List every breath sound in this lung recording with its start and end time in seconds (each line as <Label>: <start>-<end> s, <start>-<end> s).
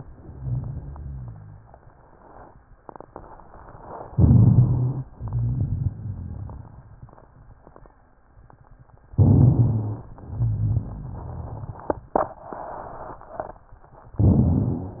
Inhalation: 4.11-5.03 s, 9.17-10.16 s
Exhalation: 5.10-7.93 s
Rhonchi: 4.14-5.08 s, 9.17-10.16 s, 10.17-12.12 s
Crackles: 5.10-7.93 s